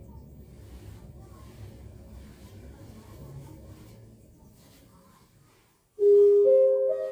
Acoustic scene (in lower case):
elevator